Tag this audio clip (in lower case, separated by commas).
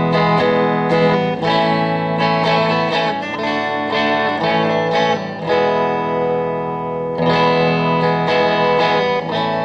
strum, electric guitar, musical instrument, guitar, music, plucked string instrument